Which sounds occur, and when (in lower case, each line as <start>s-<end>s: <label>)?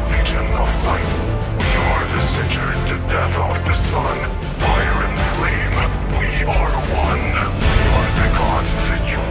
0.0s-9.3s: music